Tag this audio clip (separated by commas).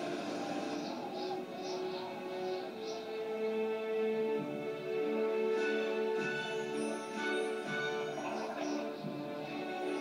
Music